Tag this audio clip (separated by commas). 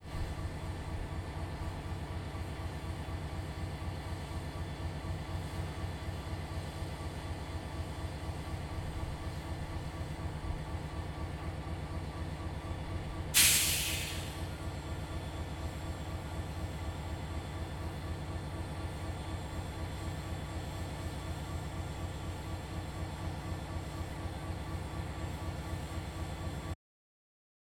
Vehicle, Train, Rail transport